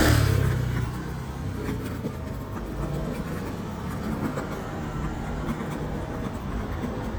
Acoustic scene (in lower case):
street